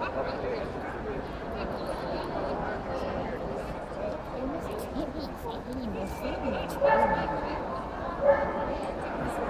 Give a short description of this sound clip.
Chatter from people and a dog bark echos